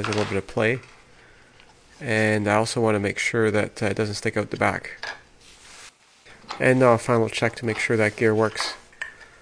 A man speaks as he makes fumbling noises with a wooden object